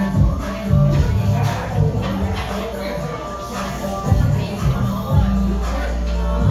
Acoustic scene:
cafe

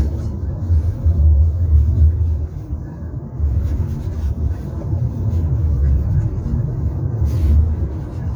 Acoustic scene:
car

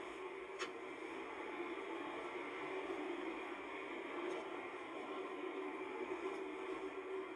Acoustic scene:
car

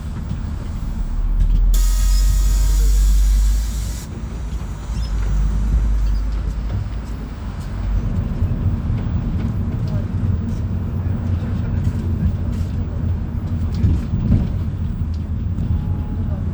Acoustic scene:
bus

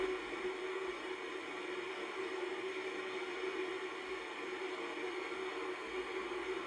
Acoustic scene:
car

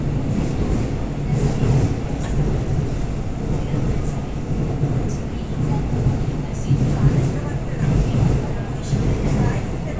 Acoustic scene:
subway train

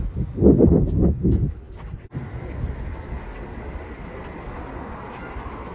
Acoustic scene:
residential area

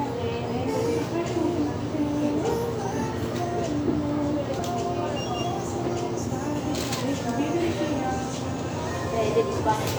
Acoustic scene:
restaurant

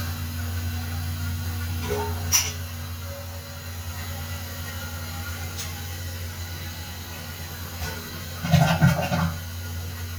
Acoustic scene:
restroom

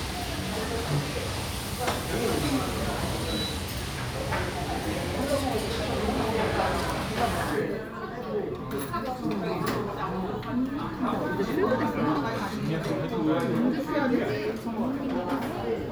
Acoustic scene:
restaurant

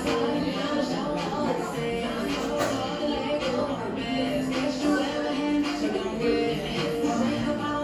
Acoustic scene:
cafe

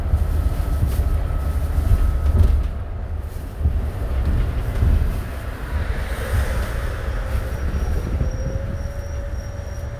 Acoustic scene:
bus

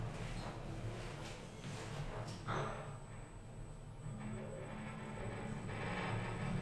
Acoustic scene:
elevator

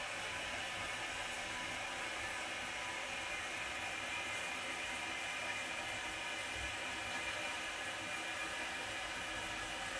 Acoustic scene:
restroom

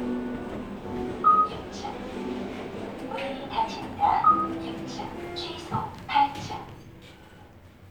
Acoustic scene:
elevator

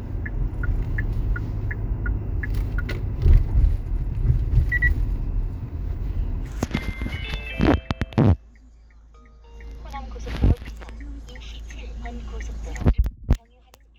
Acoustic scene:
car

